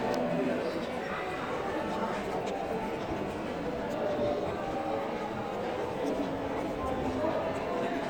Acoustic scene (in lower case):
crowded indoor space